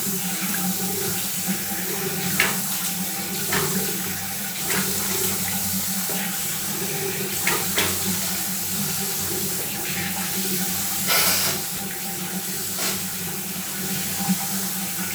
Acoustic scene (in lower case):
restroom